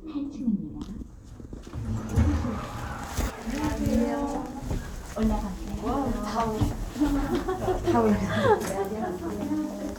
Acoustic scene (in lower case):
elevator